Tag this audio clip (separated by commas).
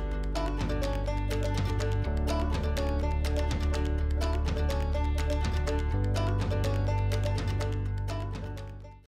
Music